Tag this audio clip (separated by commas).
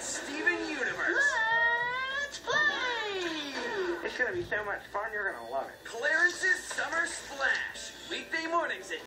Slosh, Music, Speech